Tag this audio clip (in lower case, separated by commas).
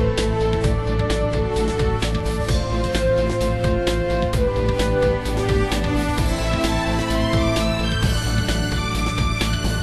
theme music, music